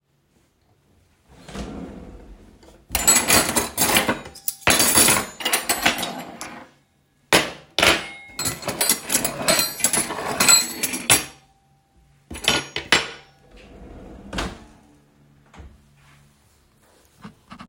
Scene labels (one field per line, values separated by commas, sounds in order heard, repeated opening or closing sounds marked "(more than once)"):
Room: kitchen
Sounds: wardrobe or drawer (more than once), cutlery and dishes, keys